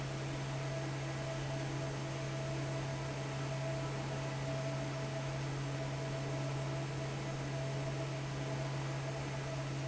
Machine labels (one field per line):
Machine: fan